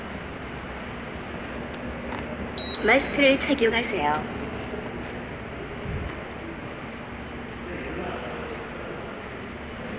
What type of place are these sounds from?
subway station